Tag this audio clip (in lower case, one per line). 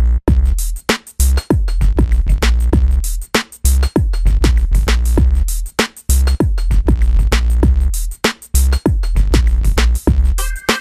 music
drum machine